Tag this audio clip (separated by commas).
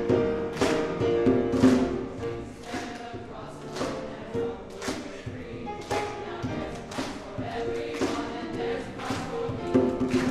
Music, Choir, Singing